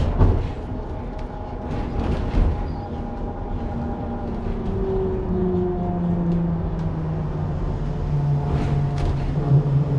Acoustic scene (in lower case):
bus